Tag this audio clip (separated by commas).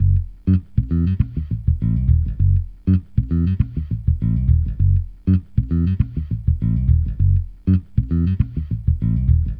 Music, Plucked string instrument, Musical instrument, Bass guitar, Guitar